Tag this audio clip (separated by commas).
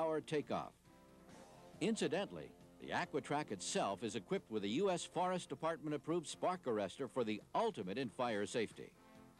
Speech